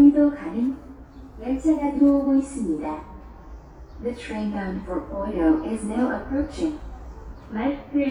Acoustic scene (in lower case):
subway station